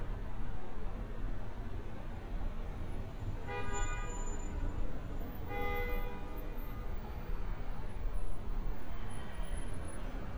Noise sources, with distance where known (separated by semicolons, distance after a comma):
medium-sounding engine, far; car horn